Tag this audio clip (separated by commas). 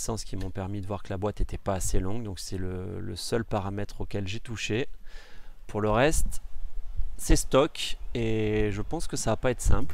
Speech